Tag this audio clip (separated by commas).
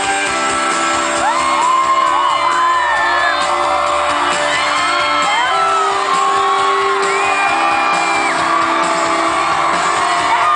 Dance music, Music